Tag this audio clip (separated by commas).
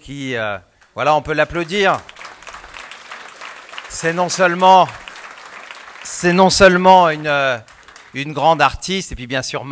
Speech